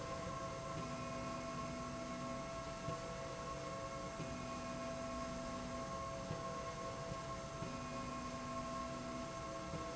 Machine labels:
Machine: slide rail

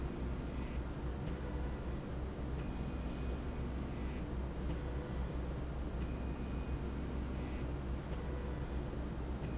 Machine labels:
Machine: slide rail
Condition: normal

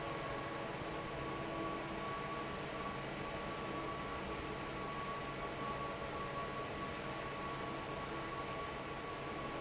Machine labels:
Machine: fan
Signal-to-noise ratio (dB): 0 dB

